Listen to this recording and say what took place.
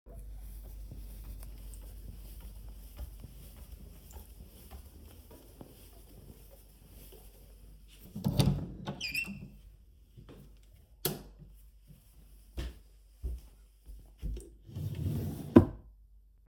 I went to the bedroom, opened the door, turned the lights on, and opened a drawer to grab something.